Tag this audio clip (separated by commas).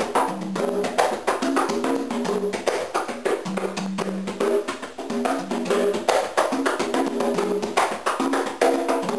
Percussion